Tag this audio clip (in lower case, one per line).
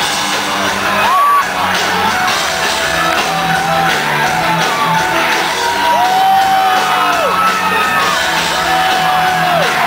crowd
music